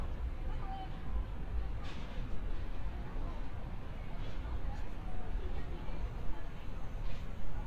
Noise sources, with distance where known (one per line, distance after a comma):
person or small group talking